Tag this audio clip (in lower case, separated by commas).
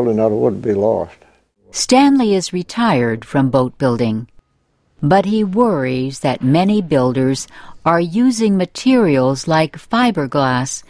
speech